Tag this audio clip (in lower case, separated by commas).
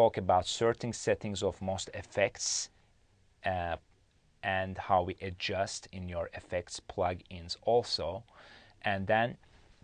speech